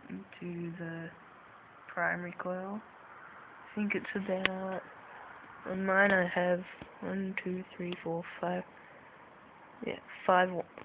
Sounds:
speech

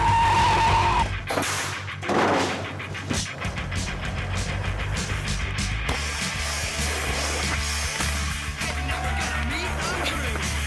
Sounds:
skateboard

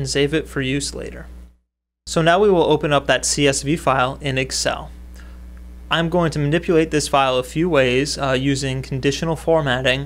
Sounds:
speech

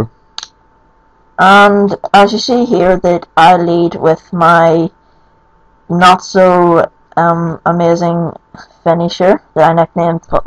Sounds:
narration
speech

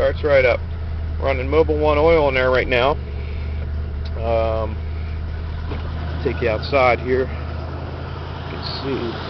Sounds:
vehicle
car
speech

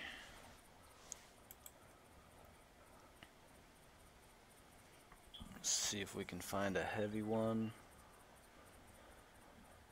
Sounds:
outside, rural or natural
speech

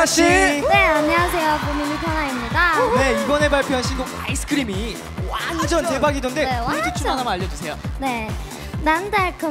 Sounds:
speech
music

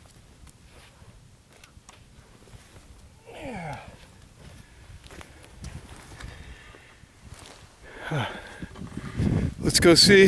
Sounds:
speech

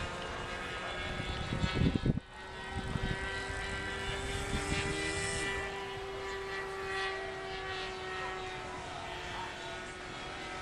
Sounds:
engine
accelerating

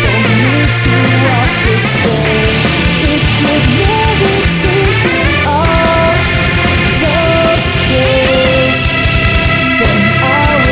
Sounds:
music

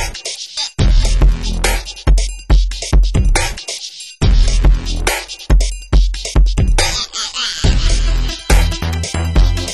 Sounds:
drum machine
hip hop music
music

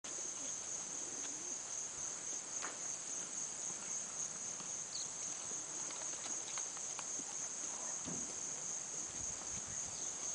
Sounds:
animal

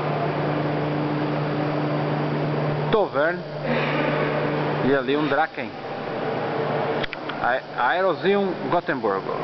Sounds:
speech

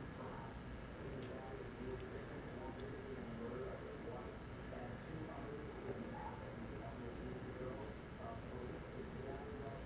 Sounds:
speech

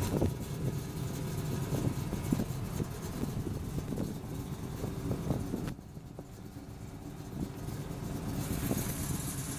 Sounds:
car
medium engine (mid frequency)
engine
vehicle
idling

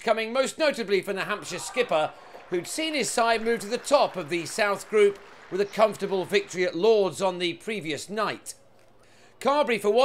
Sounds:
speech

